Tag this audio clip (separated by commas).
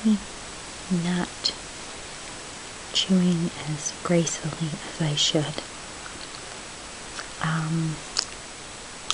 mastication, Speech